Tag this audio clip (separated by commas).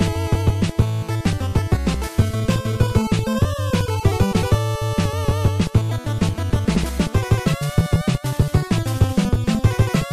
Music, Video game music, Soundtrack music